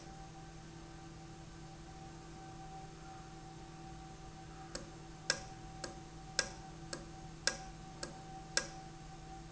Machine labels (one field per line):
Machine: valve